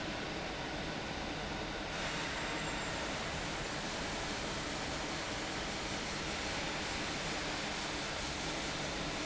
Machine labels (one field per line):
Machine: fan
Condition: abnormal